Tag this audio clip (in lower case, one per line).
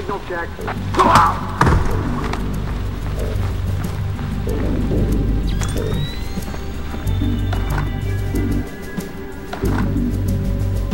music
speech